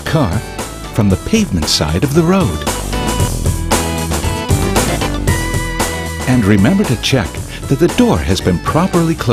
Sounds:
Speech, Music

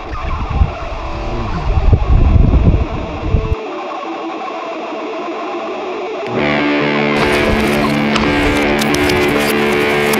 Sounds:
Bicycle, Music, Vehicle

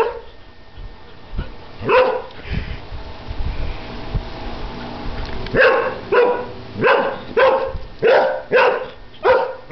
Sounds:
Bark, Dog

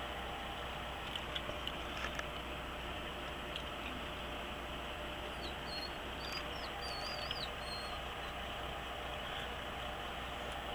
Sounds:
Vehicle

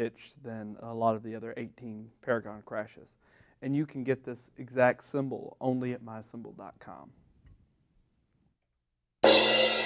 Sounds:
Music, Speech

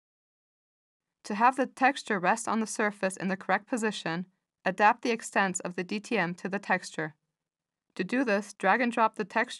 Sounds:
monologue, Speech

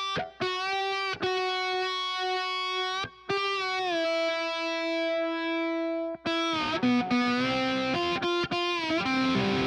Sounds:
Music, slide guitar, Distortion

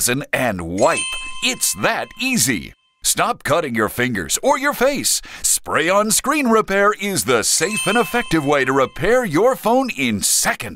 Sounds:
Speech

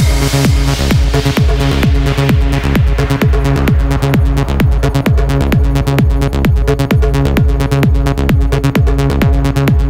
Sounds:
Music

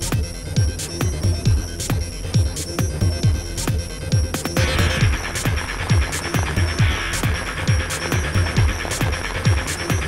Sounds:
Music, Rain on surface

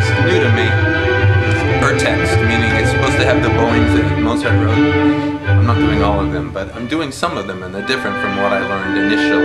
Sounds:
Music, Musical instrument, fiddle, Speech

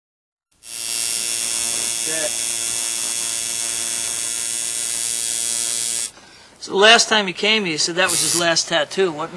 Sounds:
inside a small room, Speech

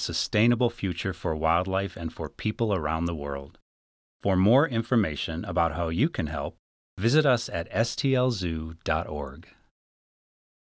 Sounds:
Speech

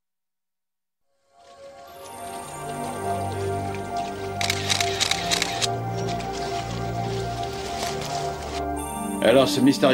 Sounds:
Speech, Music

